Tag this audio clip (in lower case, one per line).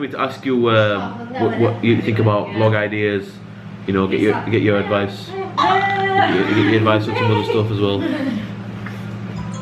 speech
babbling